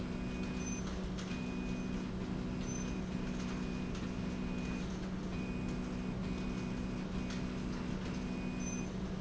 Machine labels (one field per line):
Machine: slide rail